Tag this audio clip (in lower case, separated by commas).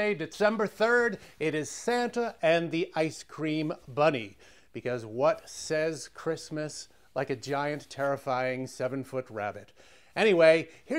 speech